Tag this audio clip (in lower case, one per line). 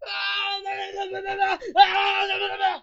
yell
shout
human voice
screaming